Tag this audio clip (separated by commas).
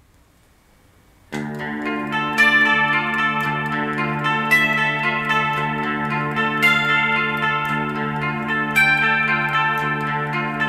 inside a small room, Music, Musical instrument, Plucked string instrument, Guitar